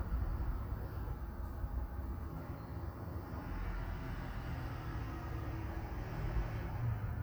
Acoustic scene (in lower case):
residential area